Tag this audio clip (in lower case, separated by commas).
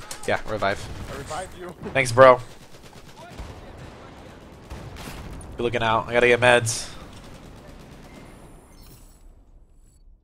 speech